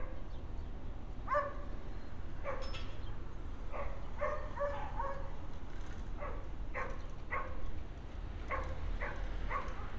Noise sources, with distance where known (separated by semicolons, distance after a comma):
dog barking or whining, far